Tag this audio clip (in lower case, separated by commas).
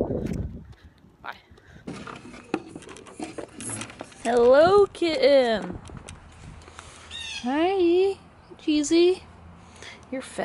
outside, rural or natural, speech